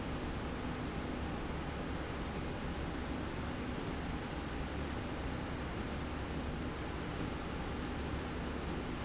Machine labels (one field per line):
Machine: slide rail